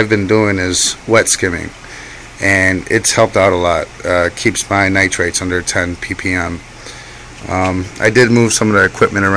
A man is speaking